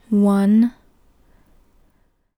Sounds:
Speech, Female speech, Human voice

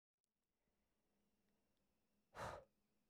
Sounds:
Respiratory sounds, Breathing

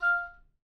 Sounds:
Wind instrument, Musical instrument, Music

